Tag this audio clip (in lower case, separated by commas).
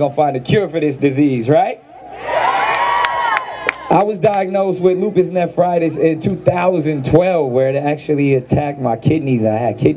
male speech, speech, monologue